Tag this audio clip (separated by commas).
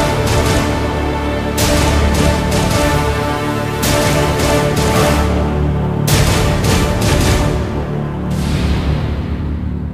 Music